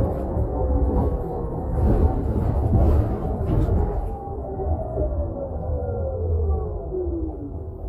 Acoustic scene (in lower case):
bus